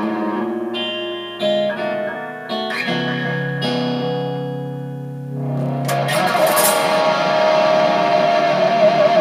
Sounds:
Guitar, Rock music, Musical instrument, Music, Plucked string instrument

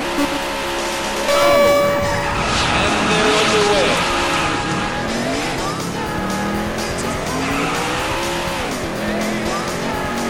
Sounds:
Music, Speech

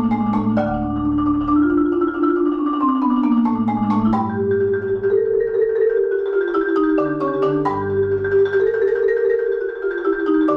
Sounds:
Music, Vibraphone, playing vibraphone

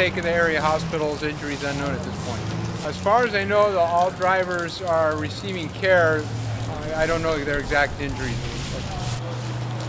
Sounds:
Speech

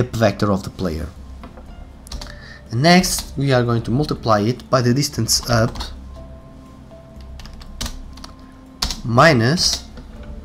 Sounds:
Speech, Computer keyboard, Music, Typing

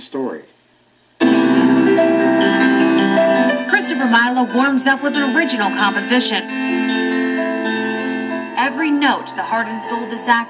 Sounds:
inside a small room, Speech, Music, Piano, Musical instrument, Keyboard (musical)

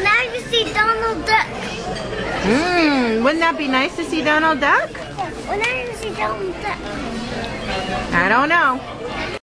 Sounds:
Speech

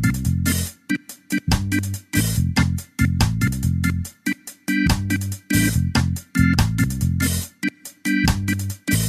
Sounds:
Music

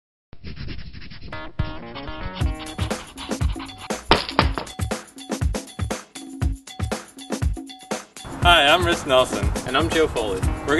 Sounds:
Music, Speech

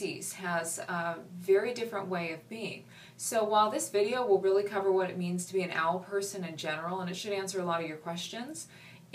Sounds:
Speech

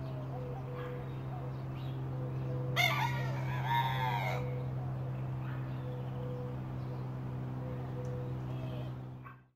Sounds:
Animal, Crowing, Chicken

